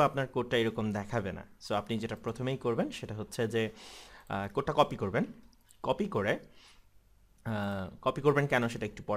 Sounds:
speech

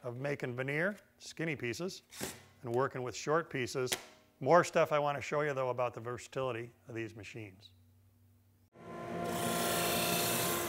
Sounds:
power tool
tools

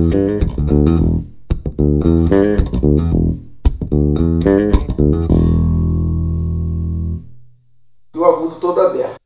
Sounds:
bass guitar
music
plucked string instrument
guitar
musical instrument

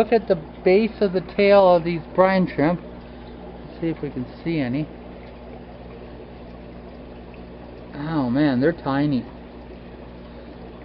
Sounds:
speech
inside a small room

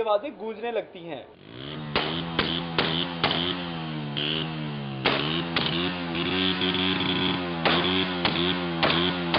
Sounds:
speech

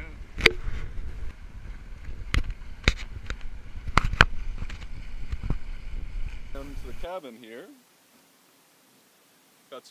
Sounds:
wind
wind noise (microphone)

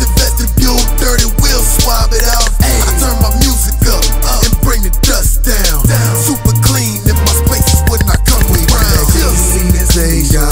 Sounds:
music

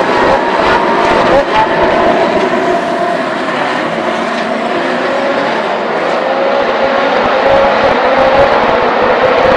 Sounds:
speech

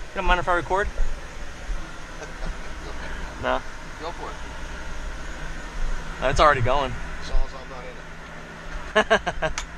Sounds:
speech

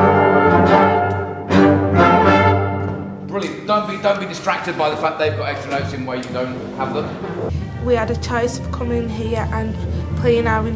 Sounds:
music
speech

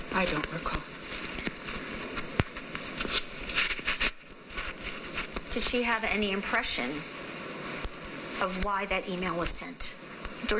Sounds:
speech

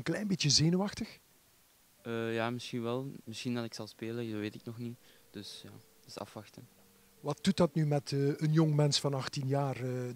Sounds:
speech

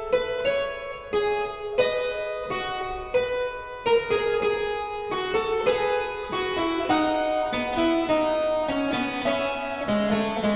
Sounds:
harpsichord
music

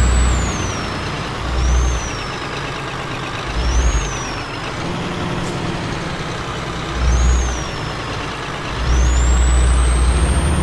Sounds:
truck
air brake
vehicle

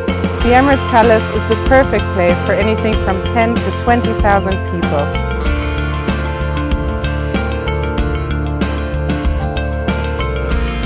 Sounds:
speech
music

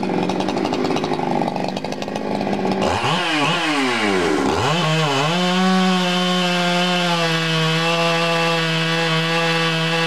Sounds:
power tool

